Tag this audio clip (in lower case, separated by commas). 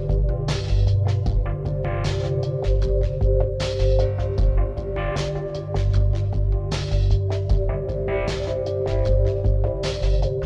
music